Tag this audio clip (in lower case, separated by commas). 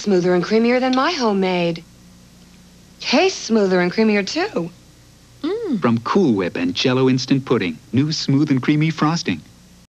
speech